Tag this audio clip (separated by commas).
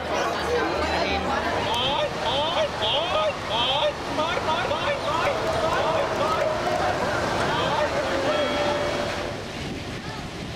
Speech